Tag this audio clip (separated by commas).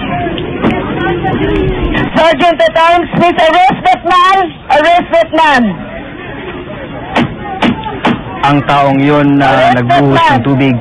Speech